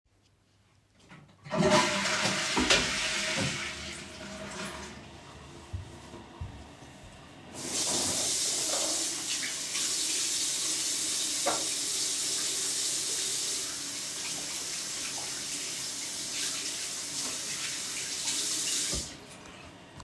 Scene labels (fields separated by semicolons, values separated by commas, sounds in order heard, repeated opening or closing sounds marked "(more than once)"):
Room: bathroom; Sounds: toilet flushing, footsteps, running water